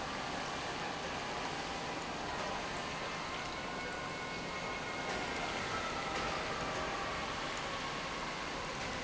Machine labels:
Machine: pump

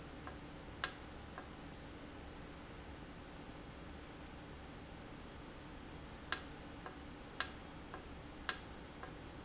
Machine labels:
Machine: valve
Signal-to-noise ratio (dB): 6 dB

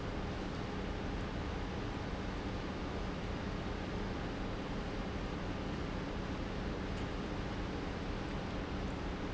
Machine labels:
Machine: pump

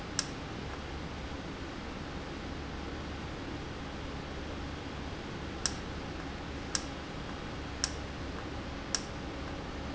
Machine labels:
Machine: valve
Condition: normal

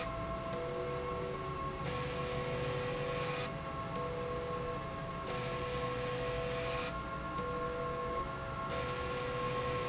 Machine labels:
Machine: slide rail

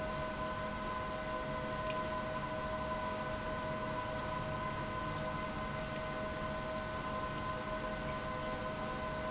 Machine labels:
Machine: pump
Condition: abnormal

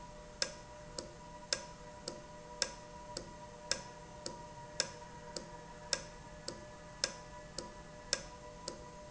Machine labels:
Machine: valve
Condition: normal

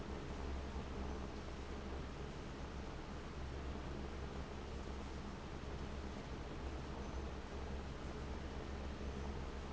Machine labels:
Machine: fan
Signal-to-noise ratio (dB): 6 dB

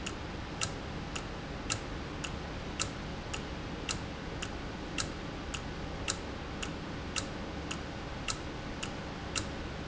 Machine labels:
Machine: valve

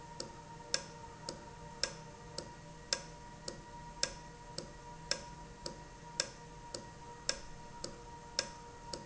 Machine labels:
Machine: valve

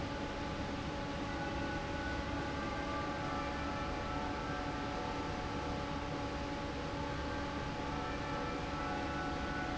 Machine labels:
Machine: fan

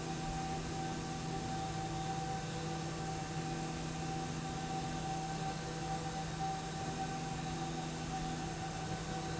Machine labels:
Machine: slide rail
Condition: normal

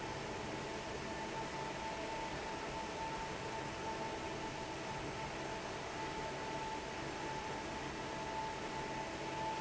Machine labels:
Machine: fan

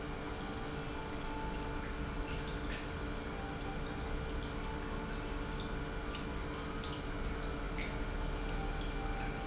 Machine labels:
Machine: pump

